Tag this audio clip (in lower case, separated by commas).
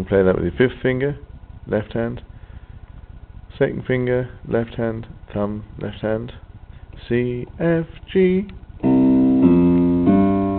piano, keyboard (musical), electric piano